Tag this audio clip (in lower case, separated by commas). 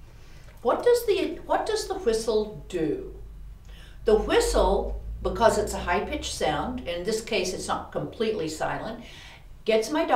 speech